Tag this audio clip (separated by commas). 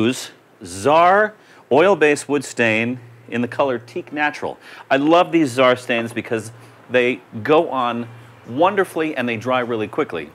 Speech